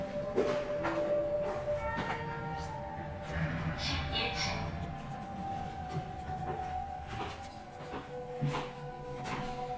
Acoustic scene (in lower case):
elevator